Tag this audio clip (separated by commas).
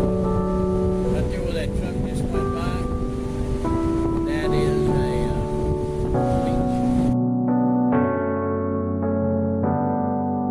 Speech, Music